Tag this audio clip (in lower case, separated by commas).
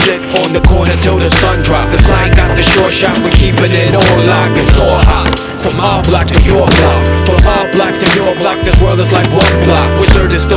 music, skateboard